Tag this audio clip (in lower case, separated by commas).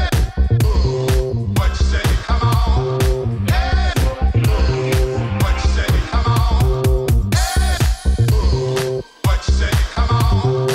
music, disco